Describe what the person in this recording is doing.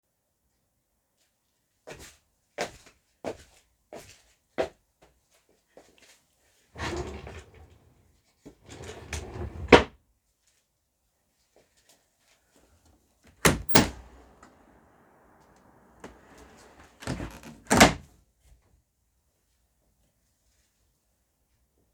I walked across the bedroom opened a wardrobe drawer and then opened the window.